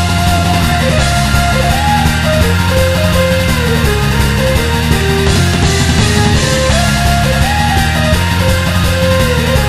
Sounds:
music

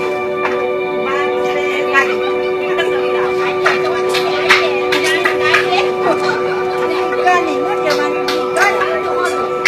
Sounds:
outside, rural or natural
speech

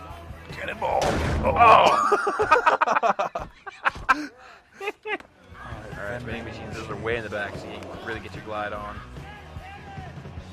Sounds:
music
speech

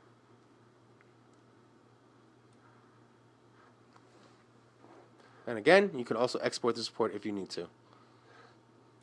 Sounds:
speech

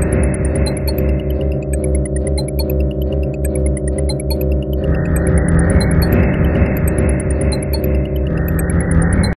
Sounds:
music

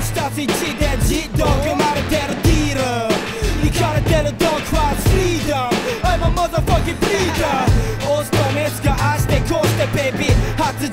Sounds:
music

